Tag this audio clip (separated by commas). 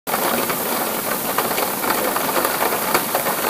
Water, Rain